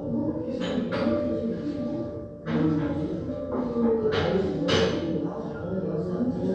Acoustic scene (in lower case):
crowded indoor space